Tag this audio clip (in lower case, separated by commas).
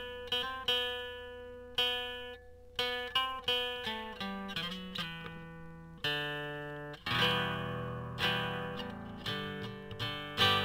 musical instrument, acoustic guitar, music, plucked string instrument, guitar